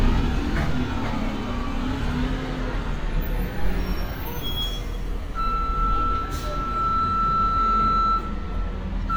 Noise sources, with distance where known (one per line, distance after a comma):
large-sounding engine, near
reverse beeper, near